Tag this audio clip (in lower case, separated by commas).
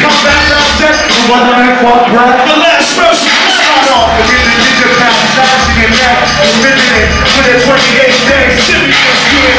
music